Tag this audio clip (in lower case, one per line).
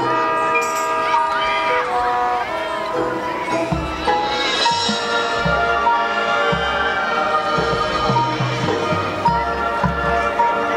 music
tender music